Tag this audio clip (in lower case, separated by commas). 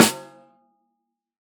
drum, music, percussion, musical instrument, snare drum